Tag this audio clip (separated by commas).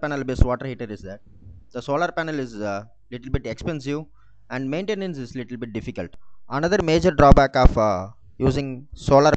Speech